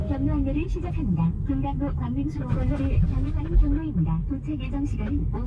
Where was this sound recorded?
in a car